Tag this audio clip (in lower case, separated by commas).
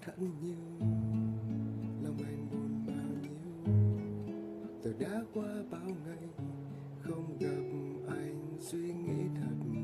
strum, plucked string instrument, music, musical instrument, guitar